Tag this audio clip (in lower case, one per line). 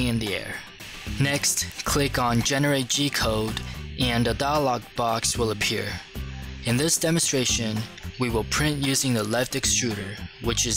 music
speech